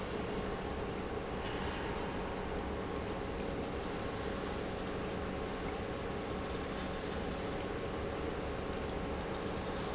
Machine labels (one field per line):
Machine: pump